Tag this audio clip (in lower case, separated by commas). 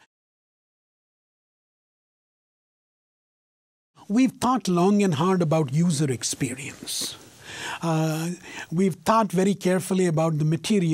speech